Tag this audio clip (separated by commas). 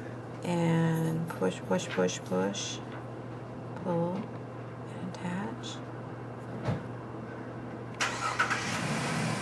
Speech